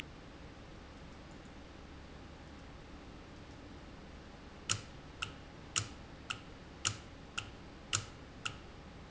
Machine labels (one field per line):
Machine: valve